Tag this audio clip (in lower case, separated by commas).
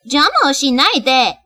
woman speaking, human voice, speech